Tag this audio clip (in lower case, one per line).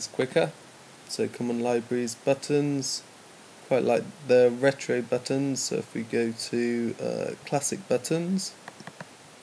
speech